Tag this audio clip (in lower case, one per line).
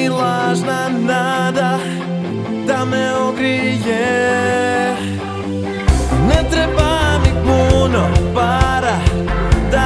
music